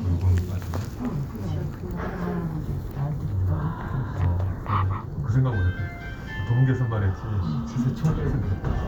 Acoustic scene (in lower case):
elevator